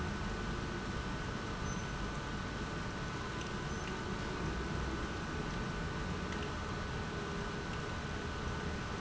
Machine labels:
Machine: pump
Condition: abnormal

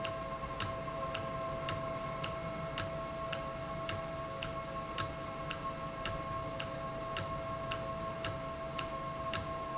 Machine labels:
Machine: valve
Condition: normal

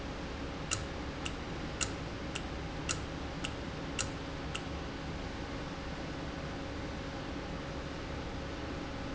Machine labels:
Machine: valve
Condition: normal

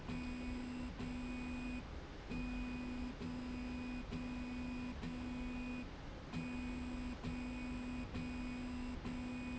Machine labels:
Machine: slide rail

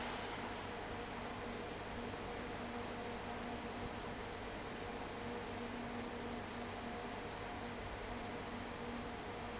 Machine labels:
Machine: fan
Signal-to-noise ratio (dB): 6 dB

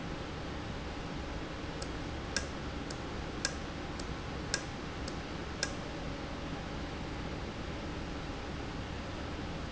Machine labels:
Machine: valve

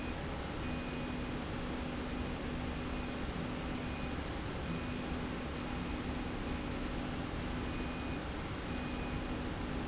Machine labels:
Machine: slide rail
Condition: normal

